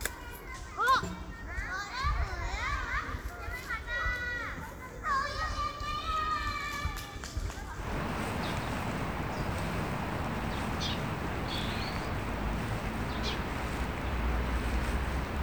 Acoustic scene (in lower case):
park